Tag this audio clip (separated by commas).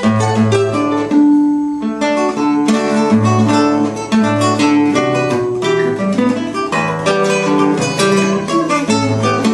Guitar, Music, Musical instrument, Plucked string instrument, Acoustic guitar